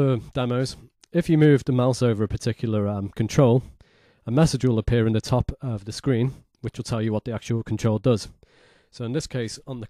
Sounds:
speech

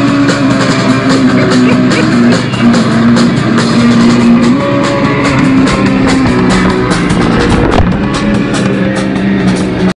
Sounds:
motorcycle, vehicle, music

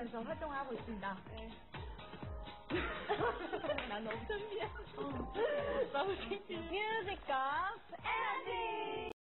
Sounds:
music, speech

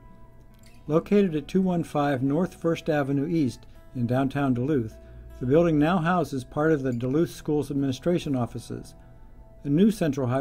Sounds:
speech

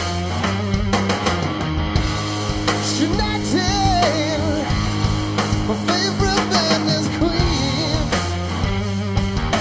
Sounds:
music, rock and roll

